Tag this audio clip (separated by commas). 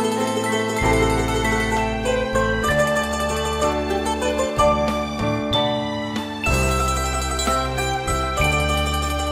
Musical instrument, Guitar, Mandolin, Music